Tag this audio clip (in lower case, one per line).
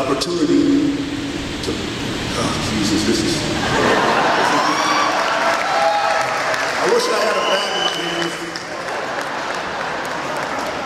speech
man speaking